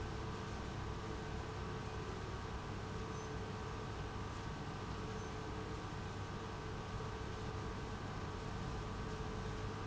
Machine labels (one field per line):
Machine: pump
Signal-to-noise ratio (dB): 0 dB